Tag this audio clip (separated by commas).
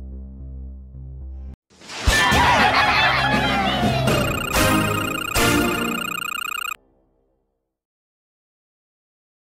Music